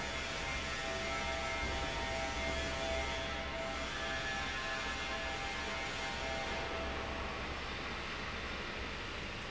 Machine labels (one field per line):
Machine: fan